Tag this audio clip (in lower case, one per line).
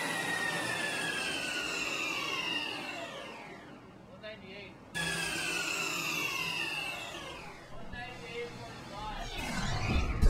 car
speech
inside a large room or hall
vehicle